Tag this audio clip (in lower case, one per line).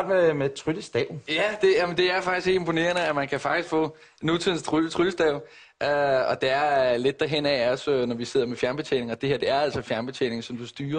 speech